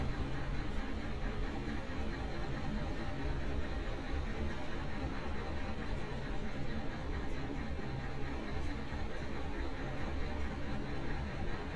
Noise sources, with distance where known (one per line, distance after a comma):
large-sounding engine, near